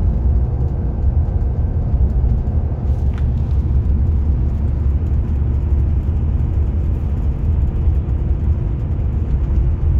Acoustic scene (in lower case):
car